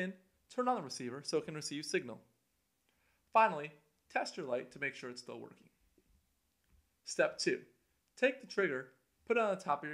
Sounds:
Speech

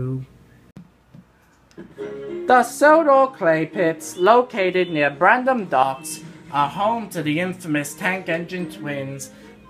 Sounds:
Speech, Music

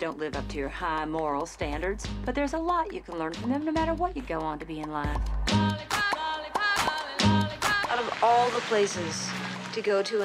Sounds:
Music, Speech

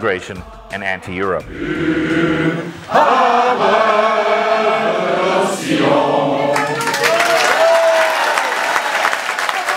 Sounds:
Applause, Speech, Music

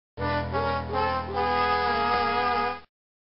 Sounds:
Music, Video game music

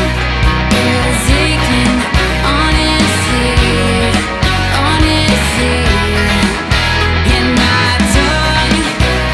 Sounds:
Music

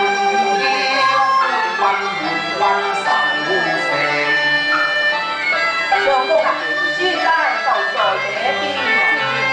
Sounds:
Music

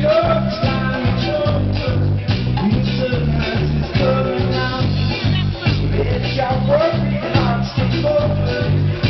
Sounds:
Speech, Music

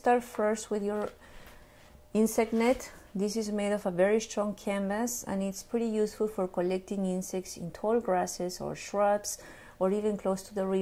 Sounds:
Speech

